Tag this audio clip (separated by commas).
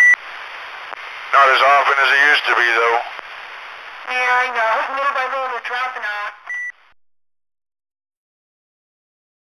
Radio, Speech, inside a small room